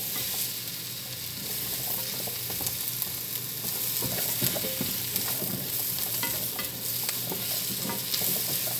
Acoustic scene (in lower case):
kitchen